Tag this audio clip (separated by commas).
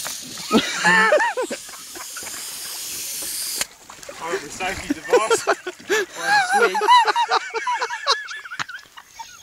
Steam, Hiss